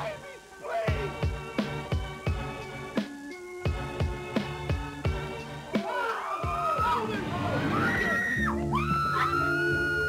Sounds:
Speech, Music

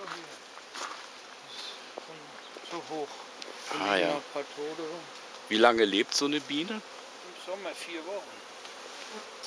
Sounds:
bee or wasp, Insect, Fly

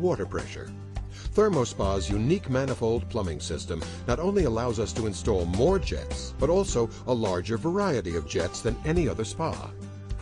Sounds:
Speech, Music

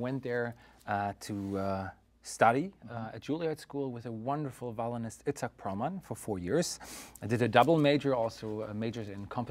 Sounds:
Speech

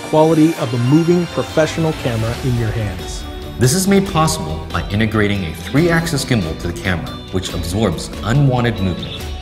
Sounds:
Music, Speech

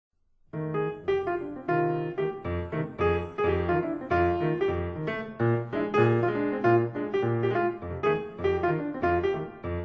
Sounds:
Electric piano, Music

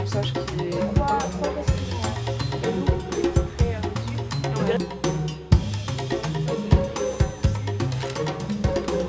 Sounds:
Speech, Music

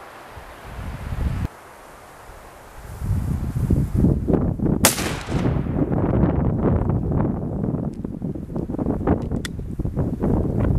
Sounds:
Rustling leaves

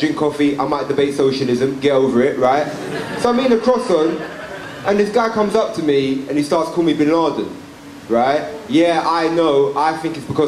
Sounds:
Speech, man speaking

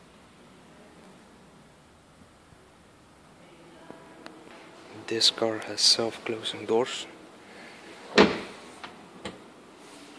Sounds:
Sliding door, inside a small room, Speech

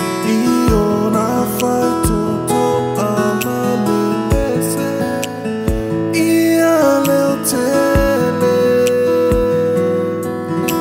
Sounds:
Background music, Music, Soundtrack music

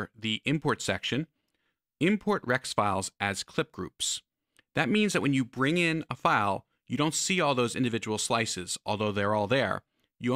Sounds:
Speech

